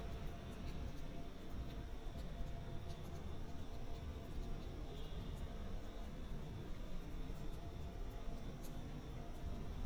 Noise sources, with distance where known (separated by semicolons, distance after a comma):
background noise